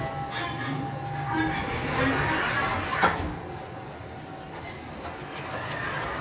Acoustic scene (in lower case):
elevator